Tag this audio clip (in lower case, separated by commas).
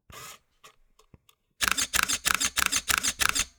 camera, mechanisms